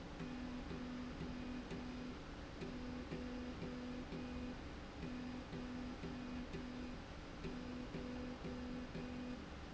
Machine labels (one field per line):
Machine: slide rail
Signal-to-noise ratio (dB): 6 dB